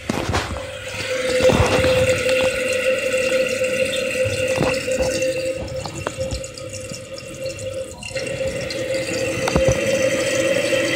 Rustling followed by flowing water